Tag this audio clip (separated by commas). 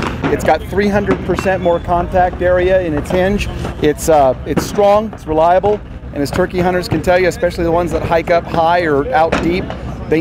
Speech